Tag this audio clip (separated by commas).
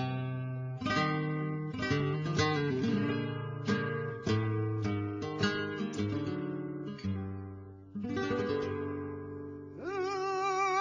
Music, Guitar, Musical instrument